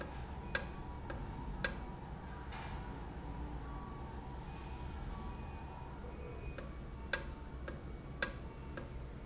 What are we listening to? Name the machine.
valve